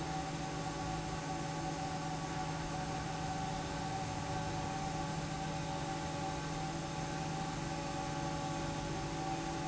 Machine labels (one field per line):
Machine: fan